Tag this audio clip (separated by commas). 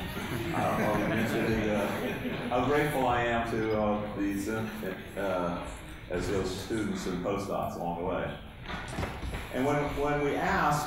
Speech